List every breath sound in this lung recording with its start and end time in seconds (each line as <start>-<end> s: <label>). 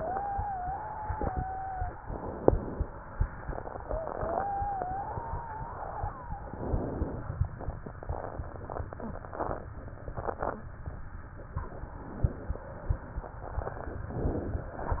0.00-1.91 s: wheeze
2.01-2.89 s: inhalation
3.91-5.82 s: wheeze
6.38-7.27 s: inhalation